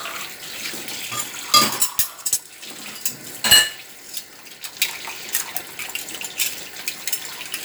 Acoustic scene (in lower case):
kitchen